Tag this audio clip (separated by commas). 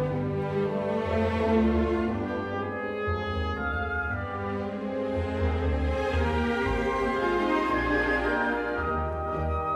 Music